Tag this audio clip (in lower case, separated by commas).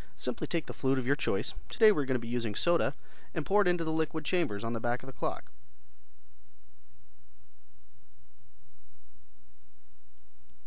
speech